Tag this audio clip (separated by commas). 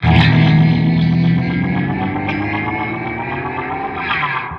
Musical instrument, Music, Plucked string instrument, Guitar